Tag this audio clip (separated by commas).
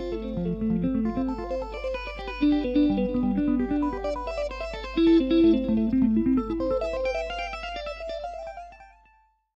Bass guitar, Music, Guitar, Musical instrument, Strum, Plucked string instrument